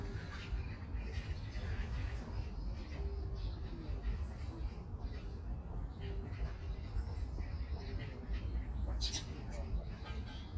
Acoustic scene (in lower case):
park